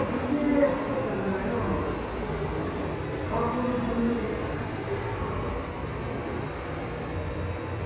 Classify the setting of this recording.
subway station